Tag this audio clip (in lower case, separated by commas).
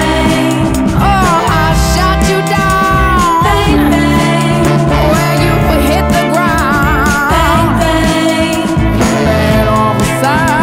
music